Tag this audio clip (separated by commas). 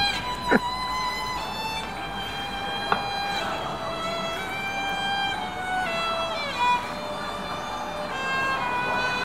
Speech, Musical instrument, Music, Violin